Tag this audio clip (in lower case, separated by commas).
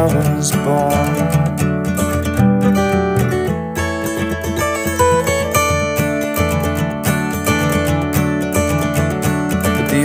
acoustic guitar